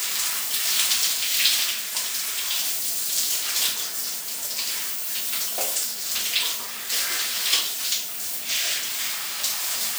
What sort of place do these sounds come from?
restroom